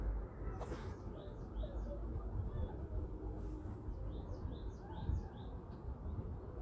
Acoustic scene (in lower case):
residential area